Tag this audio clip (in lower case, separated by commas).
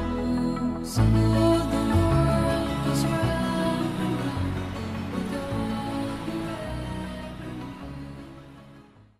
music